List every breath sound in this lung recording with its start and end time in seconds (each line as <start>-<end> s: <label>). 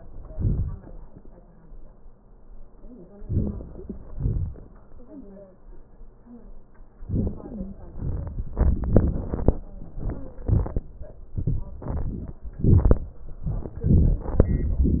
No breath sounds were labelled in this clip.